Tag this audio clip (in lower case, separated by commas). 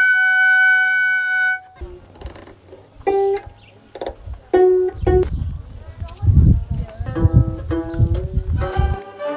music, speech